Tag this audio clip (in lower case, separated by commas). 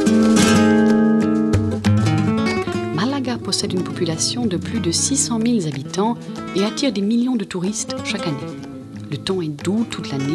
music, speech